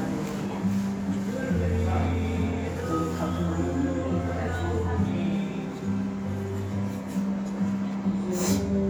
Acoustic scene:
restaurant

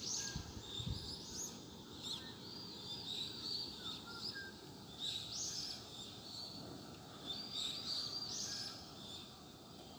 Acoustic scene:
park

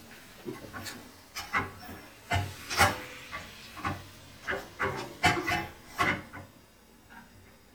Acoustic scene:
kitchen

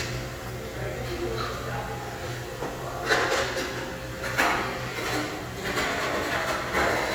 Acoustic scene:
restaurant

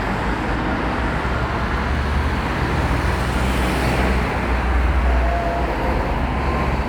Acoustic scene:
street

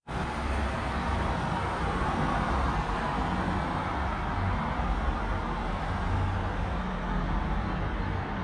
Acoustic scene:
street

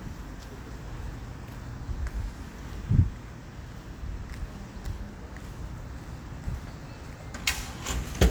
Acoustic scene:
residential area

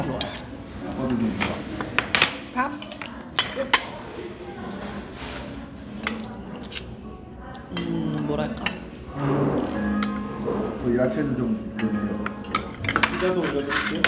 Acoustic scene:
restaurant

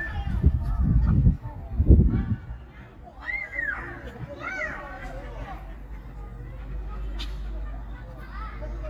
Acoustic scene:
park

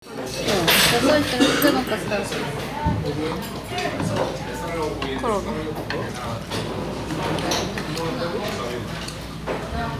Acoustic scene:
restaurant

